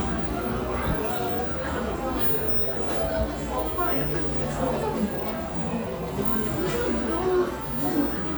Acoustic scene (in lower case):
cafe